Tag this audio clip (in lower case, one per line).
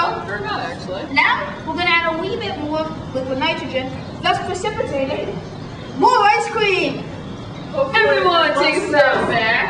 inside a large room or hall
speech